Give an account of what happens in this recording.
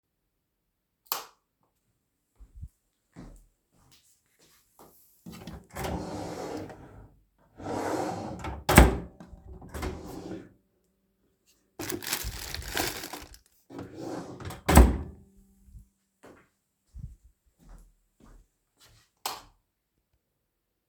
I turned on the light and walked to my drawer. I opened and then closed it. I opened another drawer and I was searching for a document. Then I closed the drawer, walked back and turn down the lights.